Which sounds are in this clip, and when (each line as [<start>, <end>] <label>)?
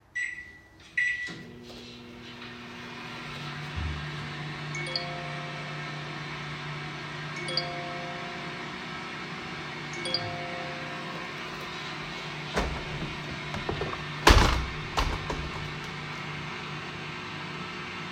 [0.09, 0.52] microwave
[0.95, 18.11] microwave
[4.69, 5.87] phone ringing
[7.35, 8.58] phone ringing
[9.92, 11.18] phone ringing
[12.48, 15.45] window